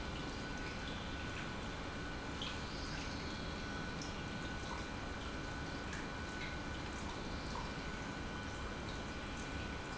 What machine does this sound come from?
pump